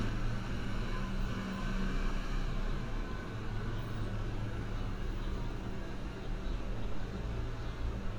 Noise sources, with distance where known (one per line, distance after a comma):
engine of unclear size